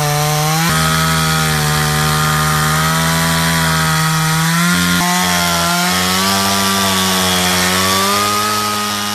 Chainsaw running